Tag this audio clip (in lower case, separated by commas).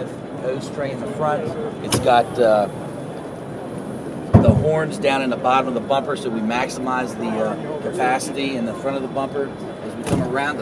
speech